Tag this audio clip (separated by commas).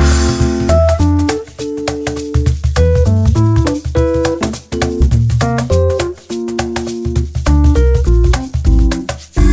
Music